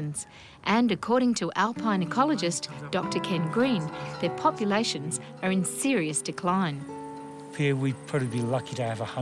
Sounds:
music, speech

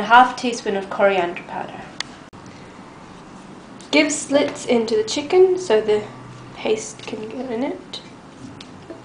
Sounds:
speech

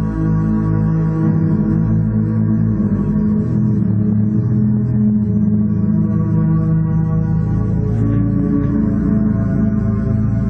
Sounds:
music, bowed string instrument, double bass, musical instrument

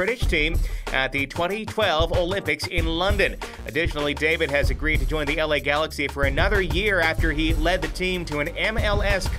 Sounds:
music, speech

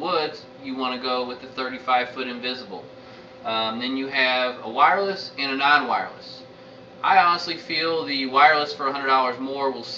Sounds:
speech

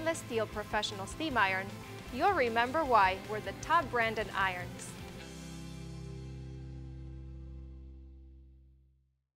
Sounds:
music, speech

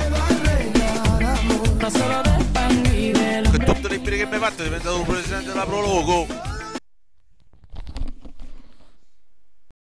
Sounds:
speech, music

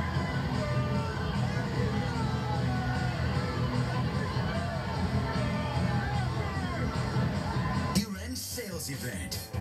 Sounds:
speech, music

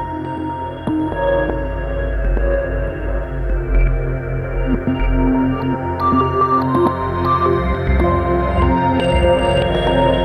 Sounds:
music

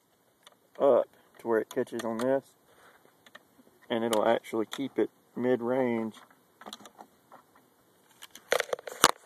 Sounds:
speech

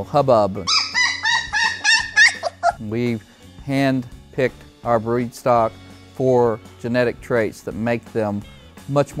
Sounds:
dog, pets, animal, music, yip, speech

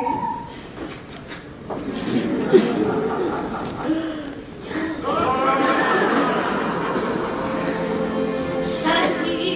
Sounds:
music, inside a large room or hall

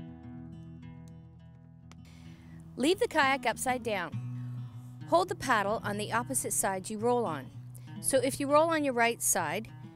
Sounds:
music, speech

